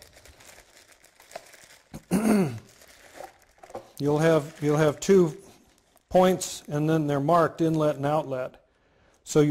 Plastic crinkling is accompanied by an adult male clearing his throat, a quiet thump occurs, and the adult male speaks